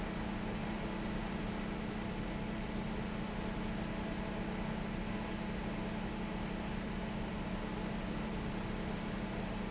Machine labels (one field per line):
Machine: fan